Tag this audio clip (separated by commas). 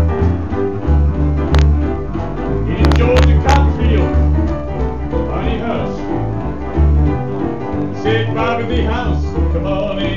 Male singing, Music